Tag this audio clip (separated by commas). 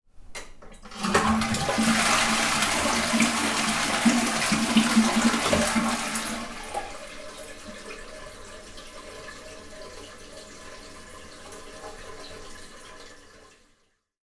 Toilet flush, home sounds